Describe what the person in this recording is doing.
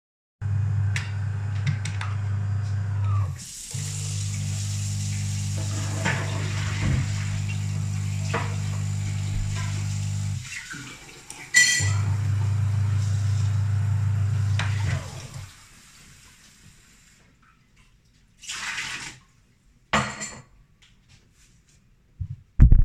I was making coffee, while washing dishes. The dishwasher was running in the background